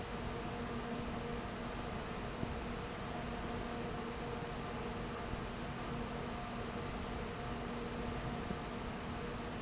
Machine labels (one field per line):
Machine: fan